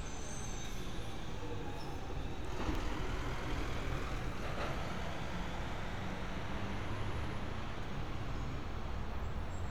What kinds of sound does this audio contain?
medium-sounding engine